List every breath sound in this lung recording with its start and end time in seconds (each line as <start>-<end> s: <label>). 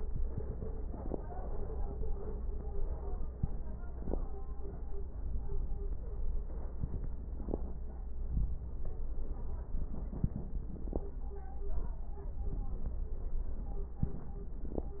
6.74-7.82 s: inhalation
6.74-7.82 s: crackles
7.83-9.22 s: exhalation
7.83-9.22 s: crackles
13.47-14.87 s: inhalation
13.47-14.87 s: crackles